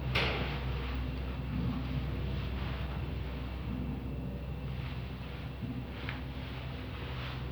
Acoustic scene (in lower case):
elevator